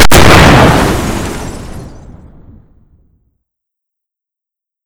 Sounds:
Explosion

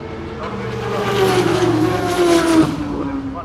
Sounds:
Motorcycle, Vehicle, Engine, Motor vehicle (road)

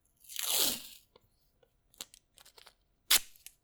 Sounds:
duct tape, home sounds

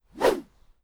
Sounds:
swish

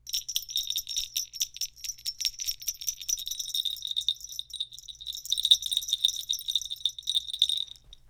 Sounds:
Bell

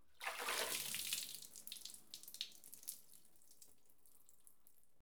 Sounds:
Water, splatter, Liquid

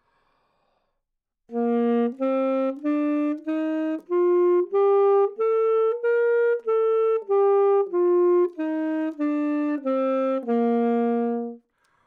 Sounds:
woodwind instrument, Musical instrument, Music

